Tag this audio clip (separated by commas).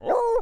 pets, Bark, Animal, Dog